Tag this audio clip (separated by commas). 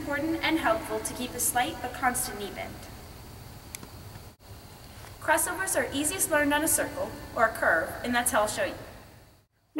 inside a large room or hall, Speech